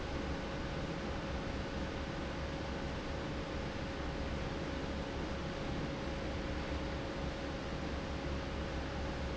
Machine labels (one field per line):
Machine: fan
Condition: normal